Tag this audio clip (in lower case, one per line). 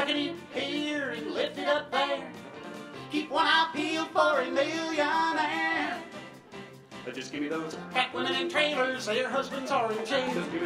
music
inside a large room or hall
singing